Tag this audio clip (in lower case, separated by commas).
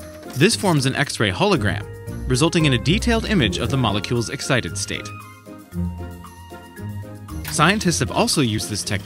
speech, music